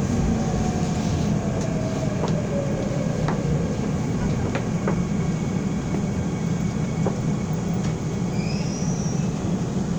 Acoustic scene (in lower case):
subway train